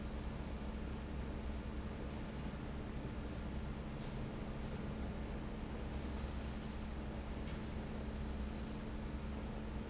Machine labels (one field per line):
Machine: fan